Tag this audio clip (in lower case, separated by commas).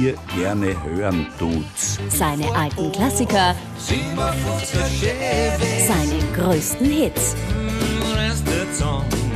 music, speech